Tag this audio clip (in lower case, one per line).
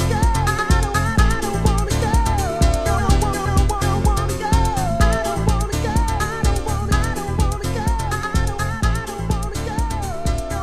funk